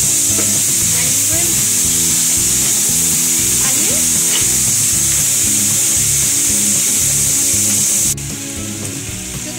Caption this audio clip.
Women talking with music in background and loud frying noise